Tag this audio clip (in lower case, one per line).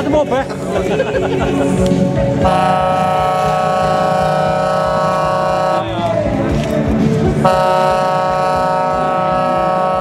music
speech